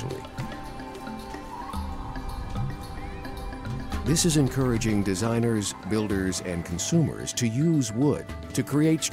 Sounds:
Speech, Music

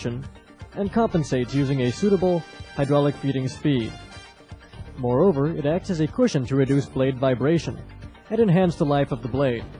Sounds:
Speech, Music

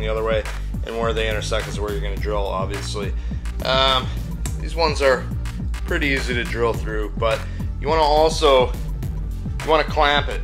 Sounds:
Music, Speech

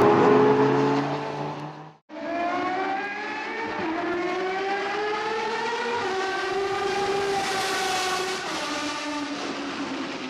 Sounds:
outside, urban or man-made, Car, Vehicle, auto racing

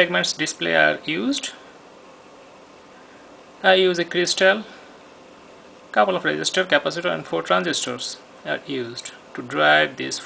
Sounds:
Speech

